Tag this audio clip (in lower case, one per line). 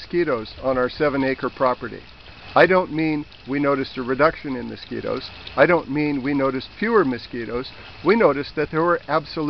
speech